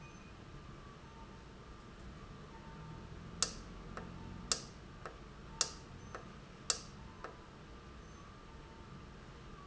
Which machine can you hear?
valve